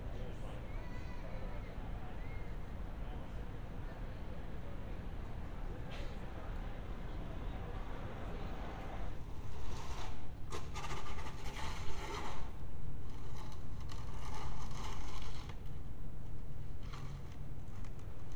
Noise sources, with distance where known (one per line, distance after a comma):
background noise